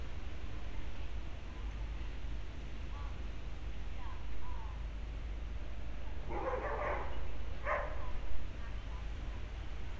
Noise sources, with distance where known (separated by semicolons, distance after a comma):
person or small group talking; dog barking or whining